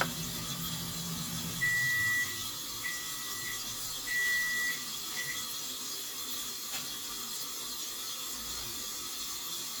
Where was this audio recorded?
in a kitchen